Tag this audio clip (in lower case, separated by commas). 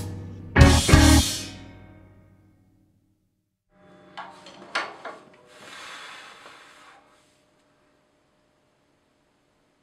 musical instrument, drum kit, music, drum, inside a small room